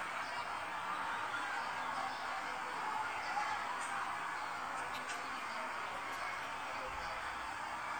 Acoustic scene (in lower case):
residential area